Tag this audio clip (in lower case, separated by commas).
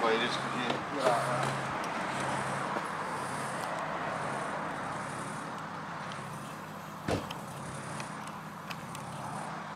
car, vehicle, car passing by, speech